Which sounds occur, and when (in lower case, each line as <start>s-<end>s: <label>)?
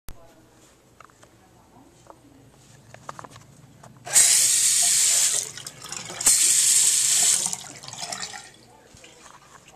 0.0s-9.7s: conversation
0.0s-9.7s: mechanisms
0.1s-0.7s: female speech
0.2s-0.7s: generic impact sounds
0.9s-1.2s: generic impact sounds
1.6s-2.6s: female speech
1.9s-2.1s: generic impact sounds
2.5s-3.8s: generic impact sounds
4.0s-5.4s: water tap
5.3s-6.2s: water
6.2s-7.6s: water tap
7.5s-8.7s: water
8.6s-9.7s: female speech
8.8s-9.7s: generic impact sounds